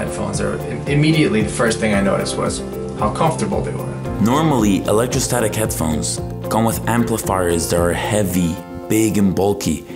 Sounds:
Speech, Music

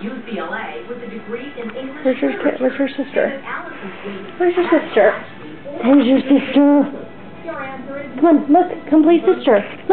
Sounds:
Music, Speech

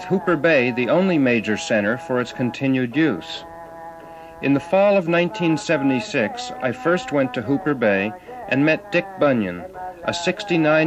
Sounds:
Speech

